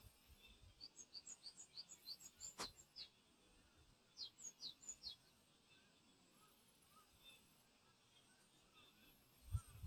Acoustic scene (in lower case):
park